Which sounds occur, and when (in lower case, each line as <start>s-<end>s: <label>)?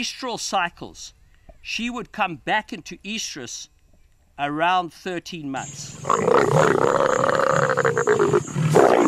1.1s-1.6s: bird
4.4s-5.6s: man speaking
5.5s-9.0s: insect
5.6s-9.0s: wind
5.9s-9.0s: roaring cats